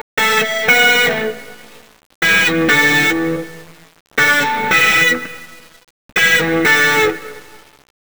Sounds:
Music, Musical instrument, Electric guitar, Plucked string instrument, Guitar

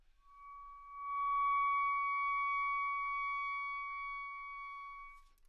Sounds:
woodwind instrument, Music, Musical instrument

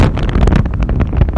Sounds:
Wind

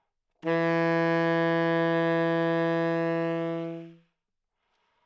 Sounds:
Musical instrument, Music, woodwind instrument

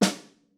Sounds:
Drum, Music, Snare drum, Musical instrument, Percussion

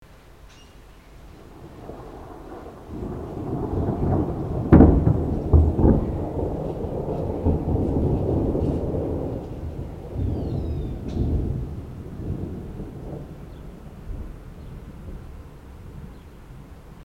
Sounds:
Thunderstorm, Water, Thunder, Rain

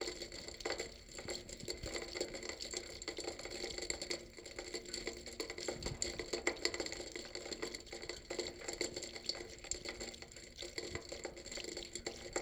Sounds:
Rain, Water

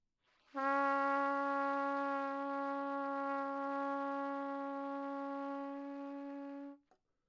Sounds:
Musical instrument, Brass instrument, Music, Trumpet

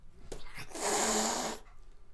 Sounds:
Cat, pets, Hiss, Animal

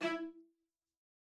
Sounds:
Bowed string instrument, Music, Musical instrument

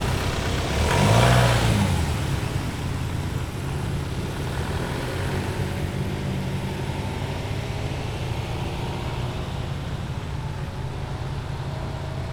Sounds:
Engine, vroom, Idling, Car, Motor vehicle (road), Vehicle

